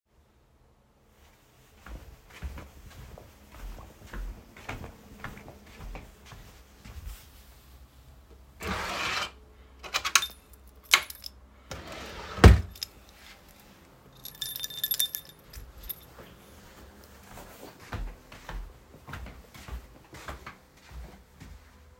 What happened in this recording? I walked across the room to my drawer, opened it, and took out my keys. I closed the drawer, jingled the keys a bit, and walked back to where I started.